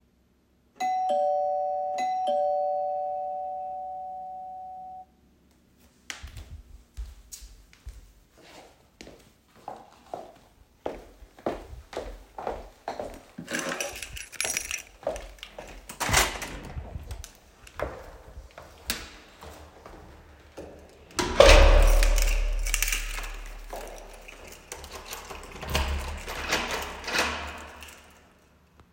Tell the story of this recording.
I heard the door bell ring, put on my shoes, walked to the front door while taking my key, opened the door and closed it. Finally, I locked the door.